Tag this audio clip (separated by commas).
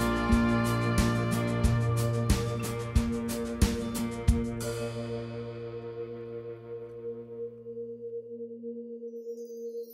Music, inside a large room or hall